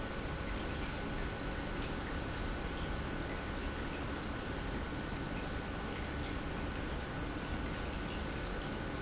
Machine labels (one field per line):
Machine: pump